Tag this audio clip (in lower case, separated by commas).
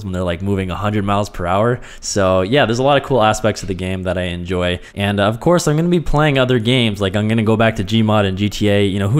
speech